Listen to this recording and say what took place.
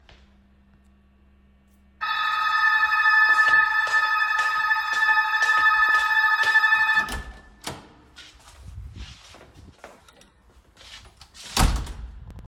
I stood near the front door in the hallway holding my phone and pressed the doorbell button to make it ring clearly. While the bell was still echoing, I took a few footsteps towards the door. Then I opened the door and closed it again firmly.